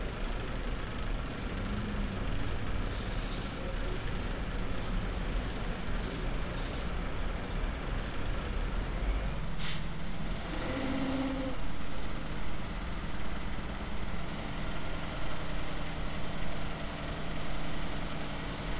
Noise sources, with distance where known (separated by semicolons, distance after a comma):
large-sounding engine